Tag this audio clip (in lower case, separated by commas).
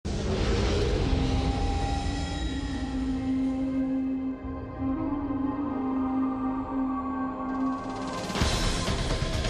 music